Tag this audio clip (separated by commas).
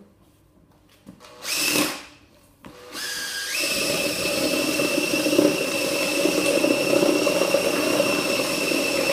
Tools, inside a small room